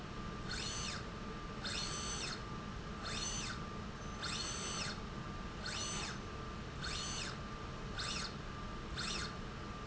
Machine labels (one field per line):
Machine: slide rail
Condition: normal